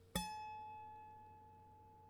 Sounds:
harp, music, musical instrument

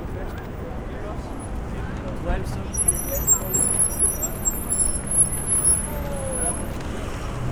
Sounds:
car, motor vehicle (road), vehicle

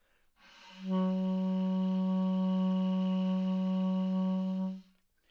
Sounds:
music, wind instrument, musical instrument

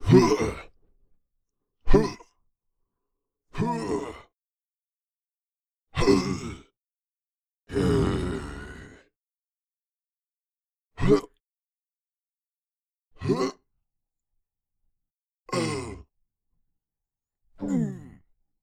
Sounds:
human voice

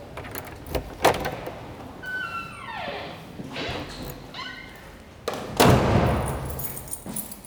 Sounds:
domestic sounds, door, slam

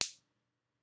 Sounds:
finger snapping, hands

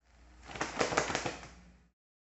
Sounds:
bird, wild animals, animal

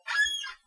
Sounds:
squeak

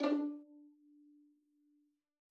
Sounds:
bowed string instrument, musical instrument, music

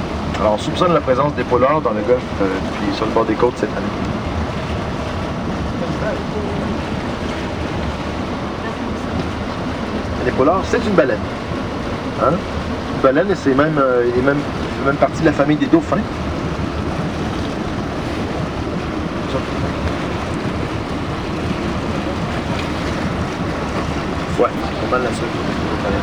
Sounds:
vehicle, boat

